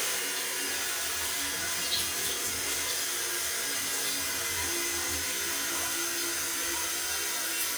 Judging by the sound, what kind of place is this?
restroom